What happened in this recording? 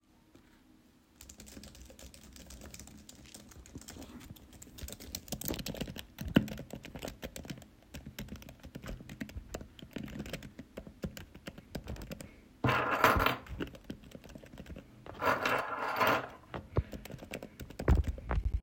I type on my keyboard while my keychain is placed on the desk.